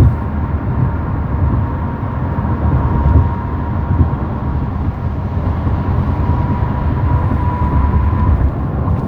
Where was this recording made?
in a car